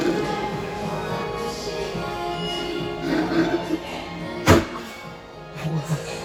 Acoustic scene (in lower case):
cafe